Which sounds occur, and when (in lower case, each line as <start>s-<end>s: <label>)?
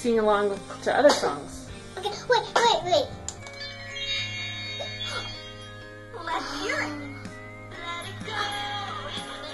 0.0s-0.6s: female speech
0.0s-3.1s: conversation
0.0s-9.5s: background noise
0.0s-9.5s: music
0.5s-0.6s: generic impact sounds
0.8s-1.6s: female speech
1.1s-1.2s: generic impact sounds
1.9s-2.2s: child speech
1.9s-2.0s: generic impact sounds
2.3s-3.1s: child speech
2.5s-2.6s: generic impact sounds
3.2s-3.3s: clicking
3.4s-6.2s: chime
3.4s-3.5s: clicking
5.0s-5.3s: gasp
5.4s-6.1s: whistling
6.1s-6.9s: female speech
6.3s-7.0s: gasp
6.9s-8.2s: whistling
7.7s-9.5s: female singing